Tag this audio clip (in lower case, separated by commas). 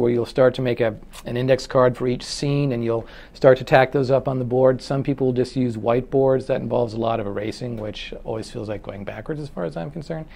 speech